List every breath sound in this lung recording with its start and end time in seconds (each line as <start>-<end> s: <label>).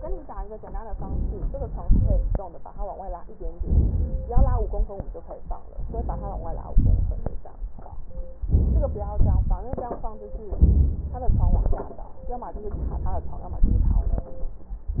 0.84-1.81 s: inhalation
1.81-2.43 s: exhalation
1.81-2.43 s: crackles
3.58-4.29 s: inhalation
4.33-5.04 s: exhalation
5.73-6.75 s: inhalation
6.74-7.48 s: exhalation
8.47-9.21 s: inhalation
9.20-9.86 s: exhalation
10.60-11.27 s: inhalation
11.31-11.98 s: exhalation
12.77-13.64 s: inhalation
13.64-14.33 s: exhalation